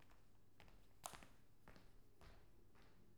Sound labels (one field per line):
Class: footsteps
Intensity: low